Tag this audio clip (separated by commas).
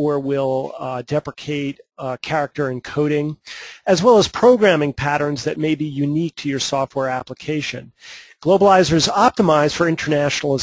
Speech